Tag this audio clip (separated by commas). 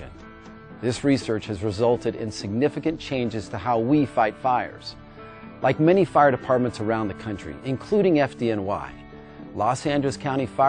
Speech, Music